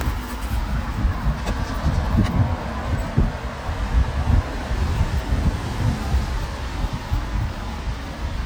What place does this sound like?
street